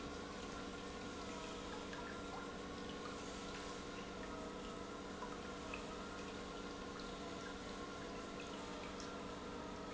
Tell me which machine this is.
pump